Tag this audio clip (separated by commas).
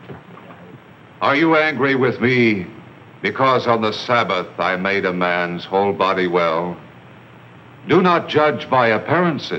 Speech